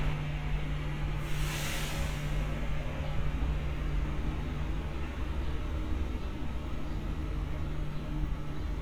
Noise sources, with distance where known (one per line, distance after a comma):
large-sounding engine, near